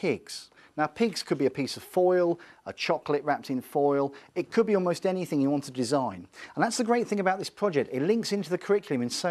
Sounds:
Speech

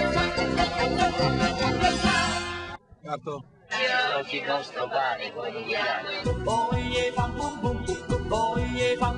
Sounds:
Music, Speech

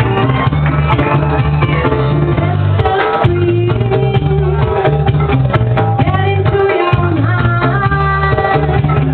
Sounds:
Music

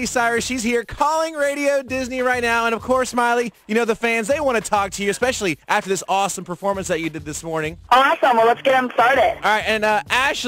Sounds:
Music, Speech

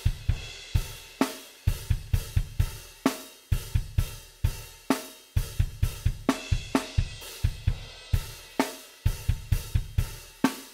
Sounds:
Drum kit, Drum machine, Music

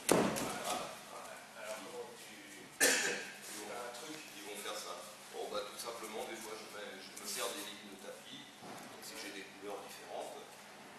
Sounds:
Speech

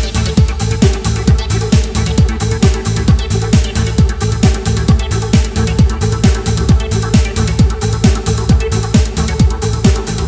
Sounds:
Music

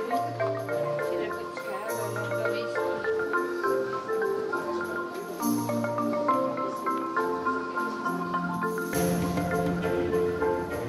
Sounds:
Music, Marimba, Vibraphone

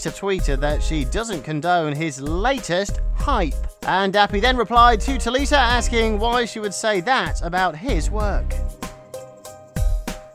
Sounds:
Music, Speech

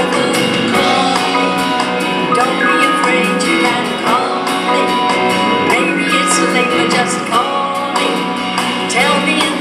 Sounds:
Music, Pop music, Singing, Female singing

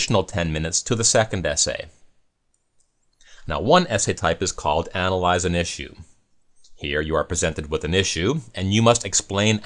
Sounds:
Speech

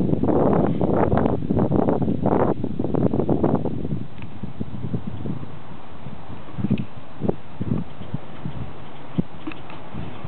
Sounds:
Wind noise (microphone)

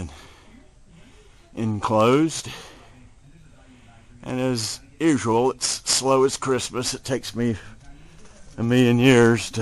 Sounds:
Speech

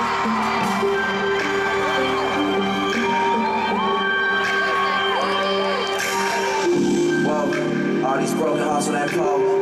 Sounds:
Singing

